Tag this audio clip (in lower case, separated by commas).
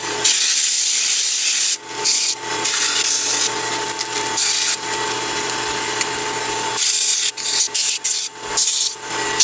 lathe spinning